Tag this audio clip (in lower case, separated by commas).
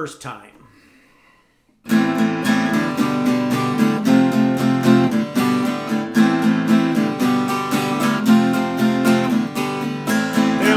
plucked string instrument, strum, musical instrument, music, guitar, speech